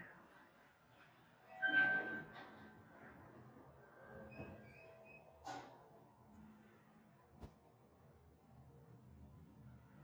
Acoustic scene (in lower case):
elevator